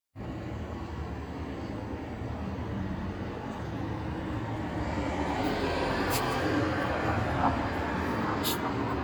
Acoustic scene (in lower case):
street